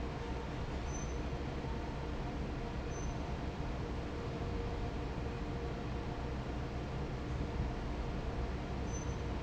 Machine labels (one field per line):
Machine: fan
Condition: normal